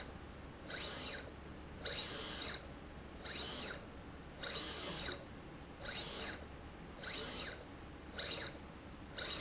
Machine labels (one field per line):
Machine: slide rail